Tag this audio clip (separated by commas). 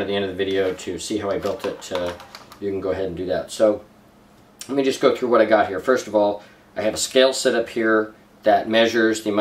Speech